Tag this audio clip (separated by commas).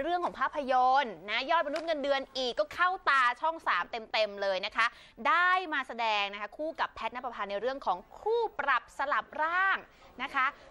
Speech